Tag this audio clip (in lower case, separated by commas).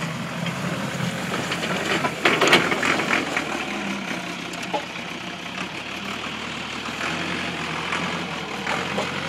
vehicle, outside, rural or natural